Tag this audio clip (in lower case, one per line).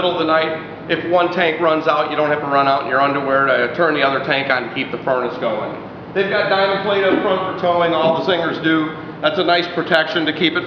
speech